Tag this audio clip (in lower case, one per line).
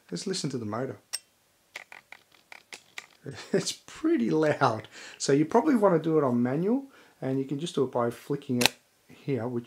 speech